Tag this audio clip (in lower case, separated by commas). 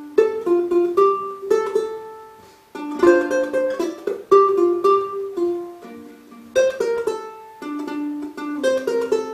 music, musical instrument, ukulele, inside a small room